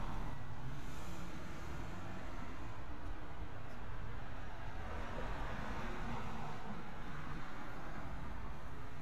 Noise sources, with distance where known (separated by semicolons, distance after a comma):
medium-sounding engine